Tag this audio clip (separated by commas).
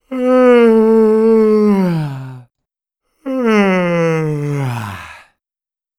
Human voice